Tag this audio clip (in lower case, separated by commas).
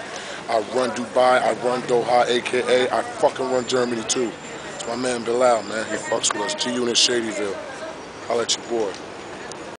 speech